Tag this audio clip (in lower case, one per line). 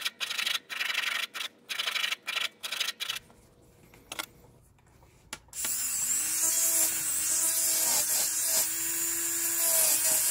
forging swords